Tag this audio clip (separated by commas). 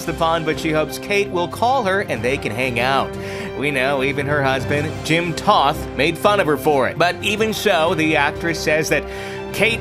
Music, Speech